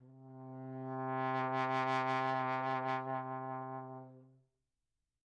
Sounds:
Musical instrument, Brass instrument, Music

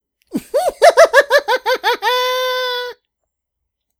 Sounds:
Laughter, Human voice

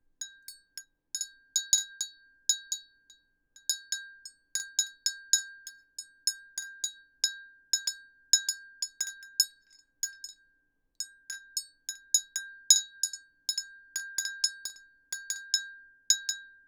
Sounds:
Glass, Chink

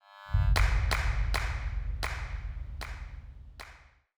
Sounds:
Clapping, Hands

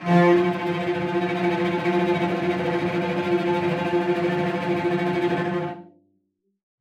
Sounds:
Musical instrument, Music, Bowed string instrument

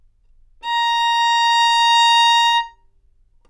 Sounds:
Bowed string instrument, Music, Musical instrument

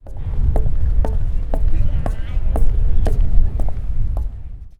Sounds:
footsteps

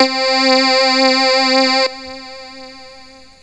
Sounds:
Music, Keyboard (musical), Musical instrument

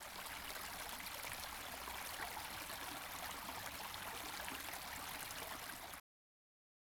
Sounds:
Stream, Water

